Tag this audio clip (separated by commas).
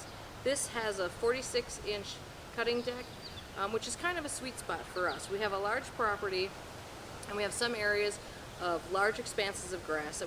Speech